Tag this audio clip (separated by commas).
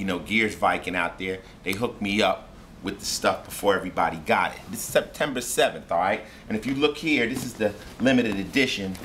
Speech